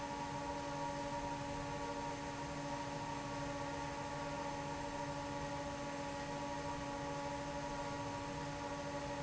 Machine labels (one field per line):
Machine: fan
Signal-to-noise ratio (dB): 0 dB